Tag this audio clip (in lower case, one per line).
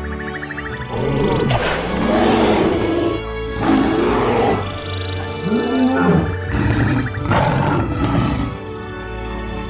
dinosaurs bellowing